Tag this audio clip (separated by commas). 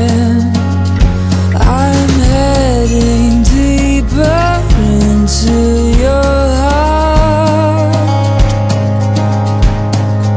Music